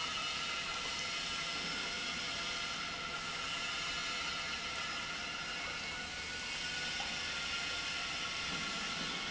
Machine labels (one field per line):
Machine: pump